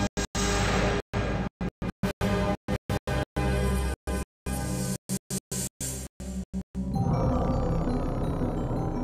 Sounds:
Music

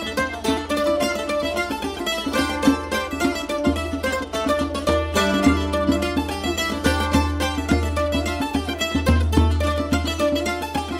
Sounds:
Music

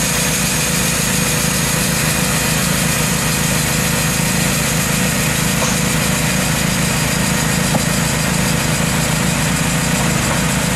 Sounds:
Heavy engine (low frequency)

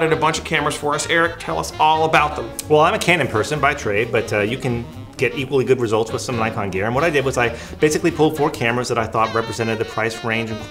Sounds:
Speech, Music

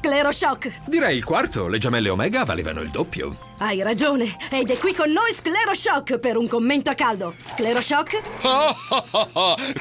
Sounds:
Music, Speech

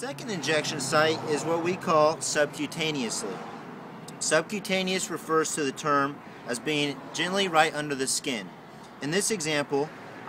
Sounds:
Speech

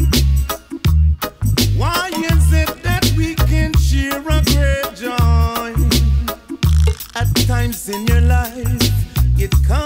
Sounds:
Music, Maraca

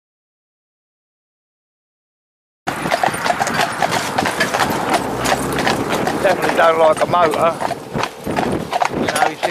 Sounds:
horse clip-clop

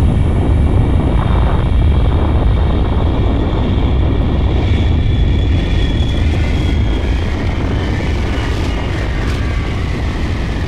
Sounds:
Aircraft engine, Aircraft

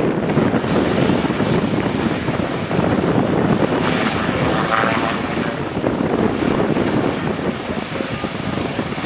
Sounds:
Vehicle, Speech, Fixed-wing aircraft, outside, urban or man-made, Aircraft

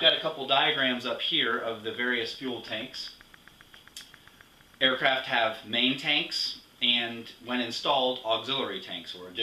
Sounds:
Speech

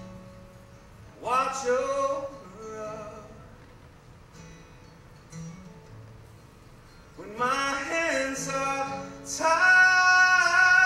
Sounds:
Music

